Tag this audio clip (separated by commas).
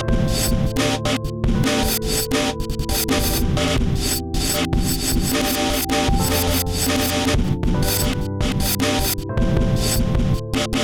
Percussion, Musical instrument, Music, Drum kit